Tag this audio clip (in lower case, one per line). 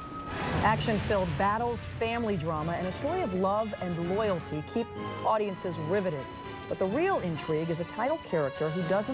music
speech